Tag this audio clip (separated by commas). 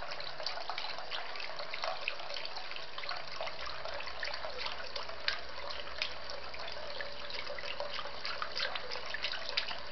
Sink (filling or washing)